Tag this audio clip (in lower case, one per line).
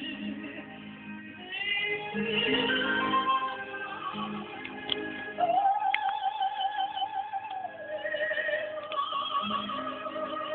opera
music
female singing
classical music